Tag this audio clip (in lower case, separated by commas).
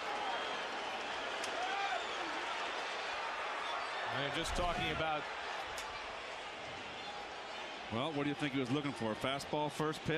speech